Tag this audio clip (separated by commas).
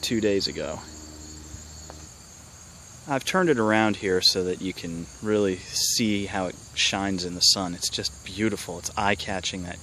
Speech